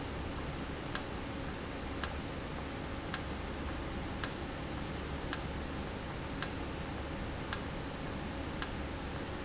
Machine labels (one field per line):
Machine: valve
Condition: normal